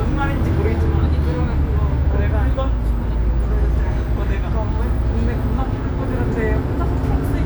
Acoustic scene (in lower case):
bus